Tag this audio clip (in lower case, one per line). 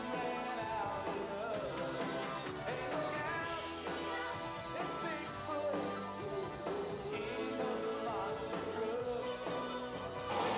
music